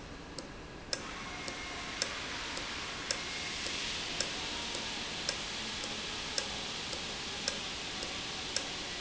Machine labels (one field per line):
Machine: valve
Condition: normal